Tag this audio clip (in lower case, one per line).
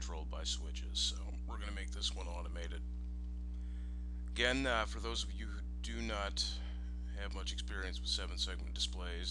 speech